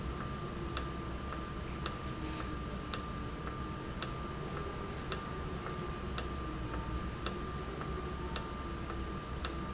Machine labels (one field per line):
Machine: valve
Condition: normal